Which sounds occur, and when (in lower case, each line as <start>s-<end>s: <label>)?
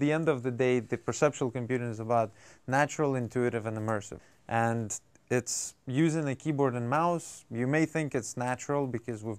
0.0s-2.3s: male speech
0.0s-9.3s: background noise
2.3s-2.6s: breathing
2.7s-4.1s: male speech
4.2s-4.5s: breathing
4.5s-5.0s: male speech
5.3s-5.7s: male speech
5.9s-9.3s: male speech